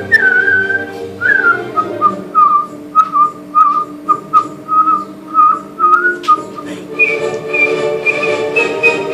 A person whistling to music